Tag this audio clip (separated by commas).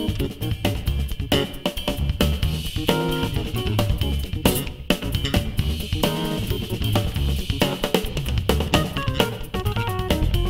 Musical instrument, Music, Drum kit, Bass drum, Drum, Cymbal